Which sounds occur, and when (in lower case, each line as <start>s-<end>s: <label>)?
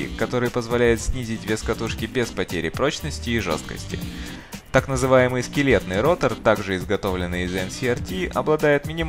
0.0s-3.9s: male speech
0.0s-9.0s: music
3.9s-4.4s: breathing
4.7s-9.0s: male speech